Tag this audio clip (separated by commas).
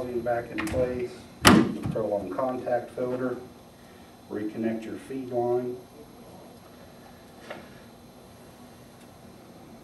Speech, inside a small room